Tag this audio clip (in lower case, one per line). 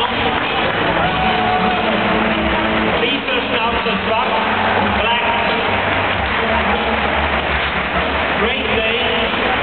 music
speech